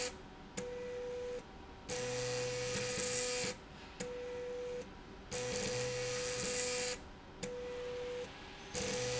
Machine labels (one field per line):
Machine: slide rail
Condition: abnormal